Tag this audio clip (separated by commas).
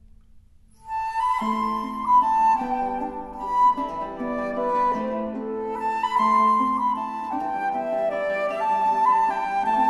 Music